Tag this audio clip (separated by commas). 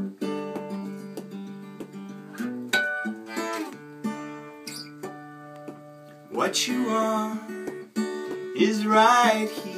Musical instrument, Guitar, Music, Plucked string instrument